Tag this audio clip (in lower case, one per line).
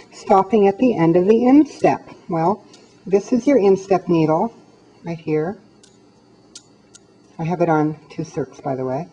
speech